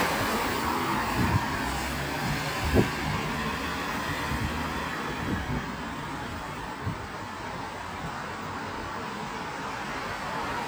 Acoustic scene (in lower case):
street